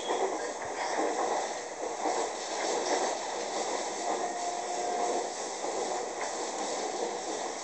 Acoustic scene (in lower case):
subway train